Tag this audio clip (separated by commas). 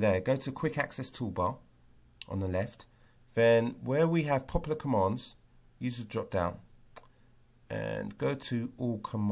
Speech